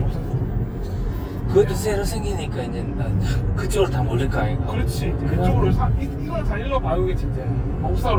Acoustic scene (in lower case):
car